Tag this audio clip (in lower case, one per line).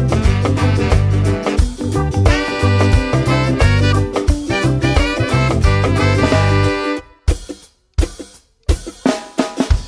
snare drum
drum kit
cymbal
drum
hi-hat